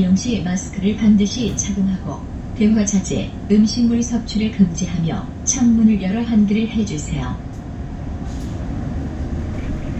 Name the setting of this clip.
bus